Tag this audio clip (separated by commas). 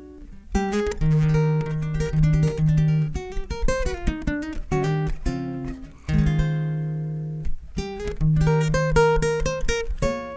Plucked string instrument, Musical instrument, Music, Guitar, Acoustic guitar